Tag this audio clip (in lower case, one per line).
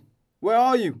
human voice
speech